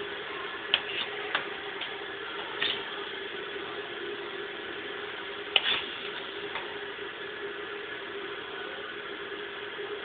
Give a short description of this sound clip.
Wind and a repeated tapping noise